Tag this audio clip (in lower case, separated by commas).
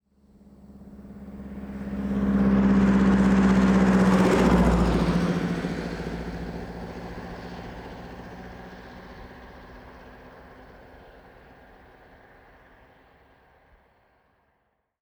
engine, car, truck, motor vehicle (road), vehicle, car passing by